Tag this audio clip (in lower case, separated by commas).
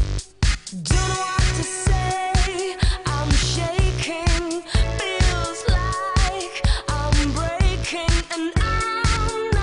music